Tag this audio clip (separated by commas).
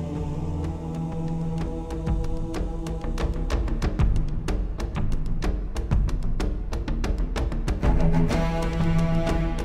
Music